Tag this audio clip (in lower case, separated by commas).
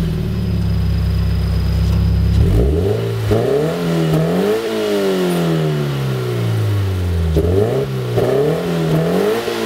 medium engine (mid frequency), vroom, car, vehicle